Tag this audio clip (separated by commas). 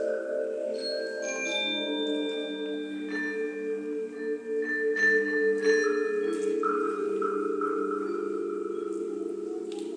xylophone, Music, Musical instrument